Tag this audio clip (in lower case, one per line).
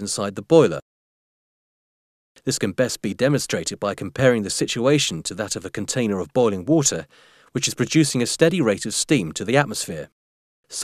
speech